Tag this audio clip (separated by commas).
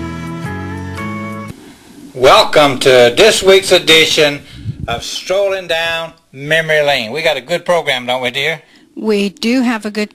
Music, Speech, Gospel music